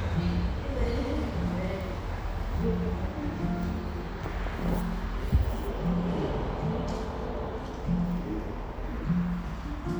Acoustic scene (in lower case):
cafe